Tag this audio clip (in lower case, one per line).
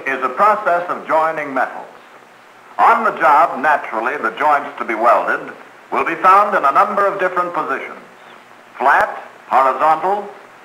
speech